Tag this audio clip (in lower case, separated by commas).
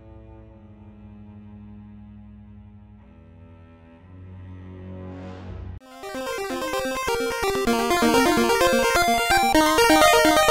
music